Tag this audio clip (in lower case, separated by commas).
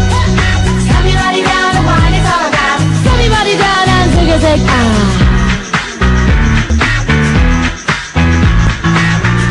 music, exciting music